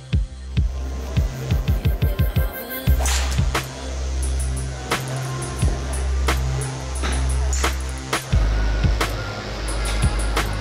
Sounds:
Music

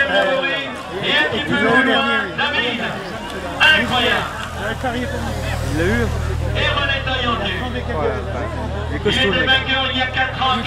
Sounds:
Speech

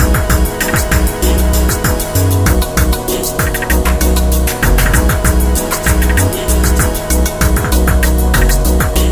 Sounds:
Music

